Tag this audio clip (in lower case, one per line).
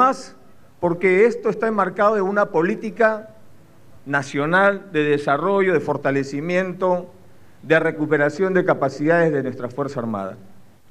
speech